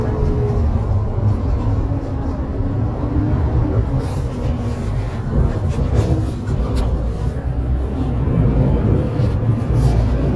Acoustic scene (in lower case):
bus